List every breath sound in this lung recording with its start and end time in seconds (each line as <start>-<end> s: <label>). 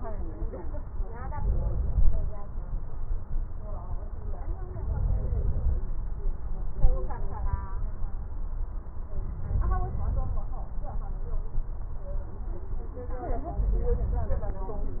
1.36-2.36 s: inhalation
1.36-2.36 s: crackles
4.78-5.79 s: inhalation
4.78-5.79 s: crackles
9.39-10.39 s: inhalation
9.39-10.39 s: crackles
13.48-14.56 s: inhalation
13.48-14.56 s: crackles